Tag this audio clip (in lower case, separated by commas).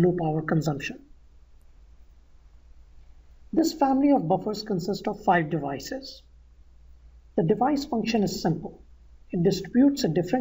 speech